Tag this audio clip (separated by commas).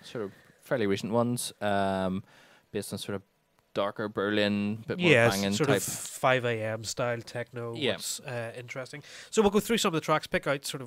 Speech